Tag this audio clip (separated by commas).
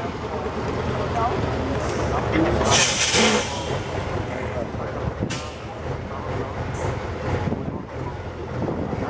Speech